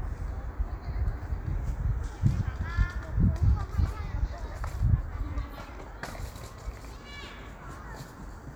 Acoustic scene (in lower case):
park